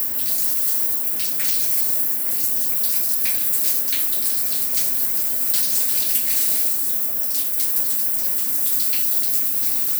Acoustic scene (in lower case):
restroom